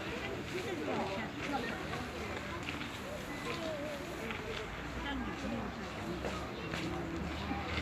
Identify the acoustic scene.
park